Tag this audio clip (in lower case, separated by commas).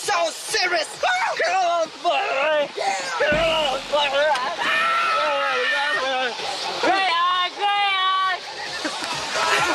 speech, music